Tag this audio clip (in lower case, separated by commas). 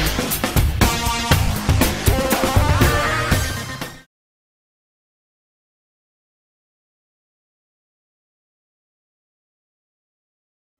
music